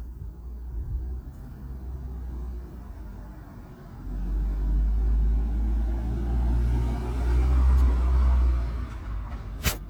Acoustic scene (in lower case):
residential area